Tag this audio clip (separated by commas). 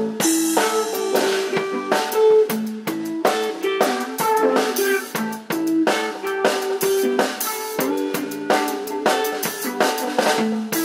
Music, Rock and roll